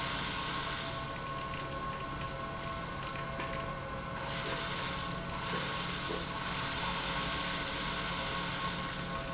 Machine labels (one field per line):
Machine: pump